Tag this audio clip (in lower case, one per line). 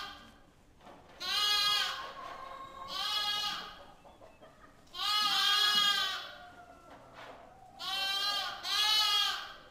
music